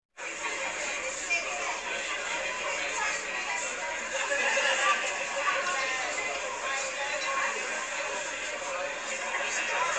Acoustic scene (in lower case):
crowded indoor space